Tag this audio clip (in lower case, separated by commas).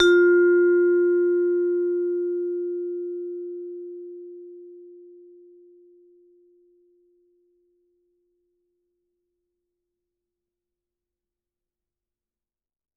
mallet percussion, musical instrument, percussion, music